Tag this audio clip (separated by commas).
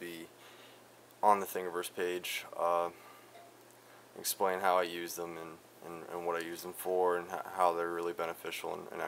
Speech